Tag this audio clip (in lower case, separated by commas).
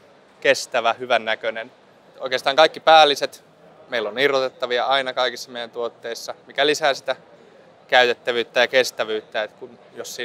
speech